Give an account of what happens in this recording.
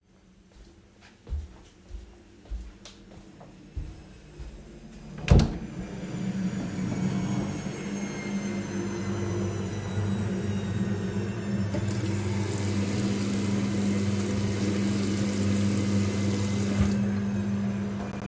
I walked down the hallway to the bathroom and opened the door. Turned on the tap to wash my hand. Then turn it off. The wash machine was active during this time